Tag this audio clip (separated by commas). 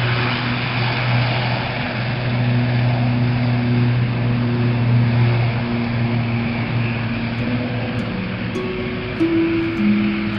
Music, Aircraft, Vehicle